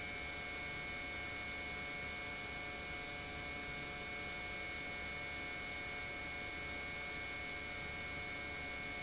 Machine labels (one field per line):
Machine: pump